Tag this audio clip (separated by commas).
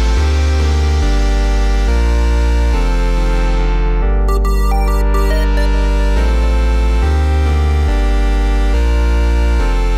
Music, Dubstep